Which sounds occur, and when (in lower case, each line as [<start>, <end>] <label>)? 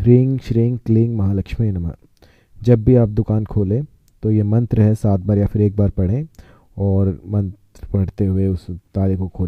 [0.00, 1.96] man speaking
[0.00, 9.45] background noise
[2.17, 2.61] breathing
[2.64, 3.90] man speaking
[4.22, 6.34] man speaking
[6.38, 6.75] breathing
[6.79, 7.56] man speaking
[7.78, 8.77] man speaking
[8.96, 9.45] man speaking